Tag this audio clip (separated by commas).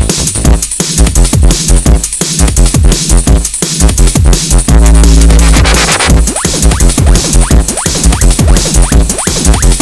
Music